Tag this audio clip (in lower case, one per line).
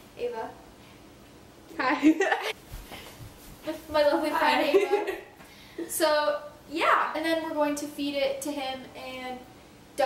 speech